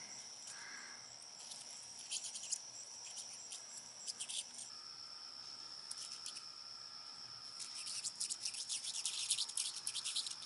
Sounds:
mouse squeaking

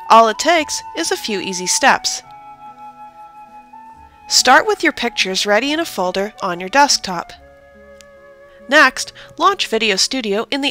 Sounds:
Speech, Music

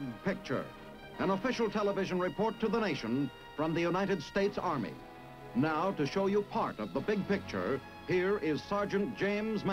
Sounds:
Speech, Music

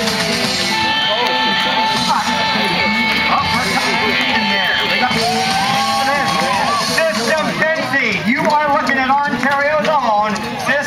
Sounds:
Music, Speech, Country

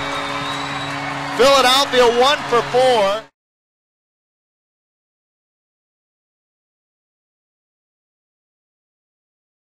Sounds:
Speech, Cheering

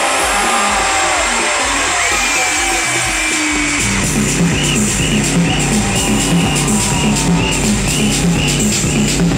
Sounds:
Music

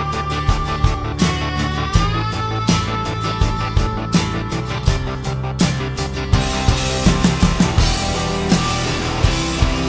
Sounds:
Music

